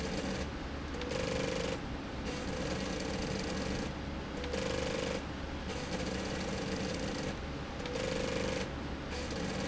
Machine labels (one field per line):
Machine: slide rail